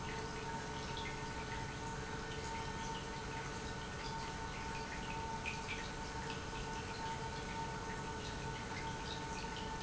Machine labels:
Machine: pump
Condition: normal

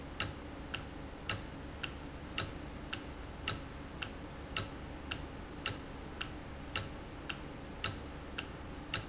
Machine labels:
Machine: valve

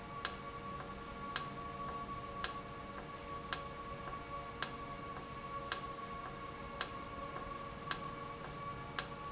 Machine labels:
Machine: valve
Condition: normal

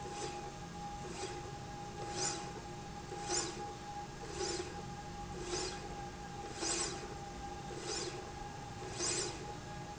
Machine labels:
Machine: slide rail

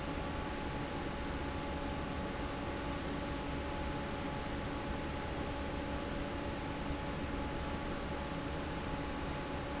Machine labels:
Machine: fan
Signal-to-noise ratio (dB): -6 dB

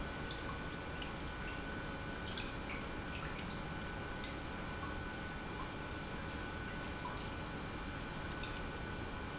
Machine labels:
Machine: pump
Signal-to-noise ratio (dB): 0 dB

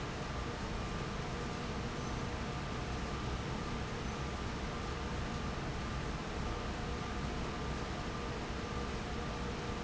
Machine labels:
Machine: fan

